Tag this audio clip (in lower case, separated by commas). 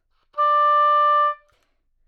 woodwind instrument, musical instrument, music